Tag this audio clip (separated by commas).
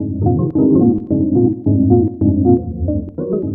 Music, Musical instrument, Keyboard (musical), Organ